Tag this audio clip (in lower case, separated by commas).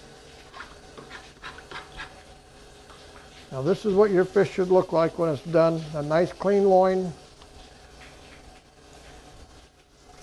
speech